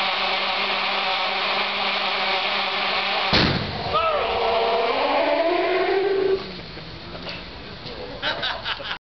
Buzzing followed by pop, speech and more buzzing